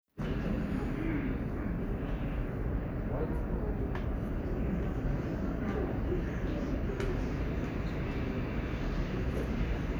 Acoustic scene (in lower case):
subway station